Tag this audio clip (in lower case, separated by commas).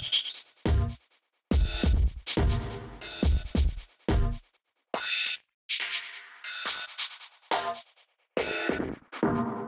music, electronic music, dubstep